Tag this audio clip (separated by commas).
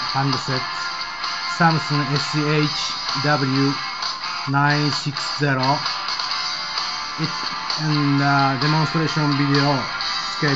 Speech, Music